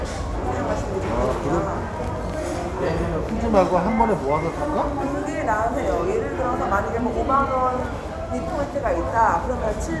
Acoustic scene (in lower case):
restaurant